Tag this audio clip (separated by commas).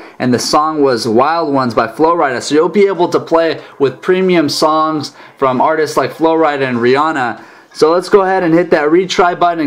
Speech